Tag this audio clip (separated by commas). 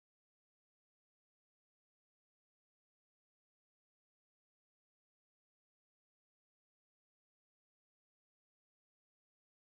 Music, Drum machine